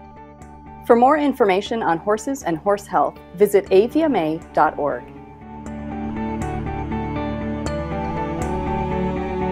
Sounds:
speech, music

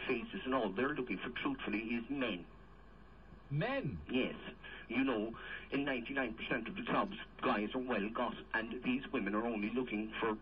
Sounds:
speech

